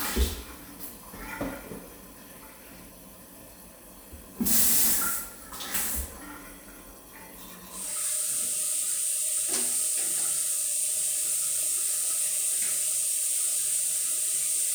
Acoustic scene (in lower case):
restroom